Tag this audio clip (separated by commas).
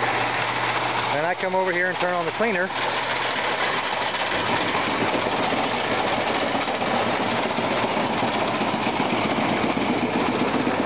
Speech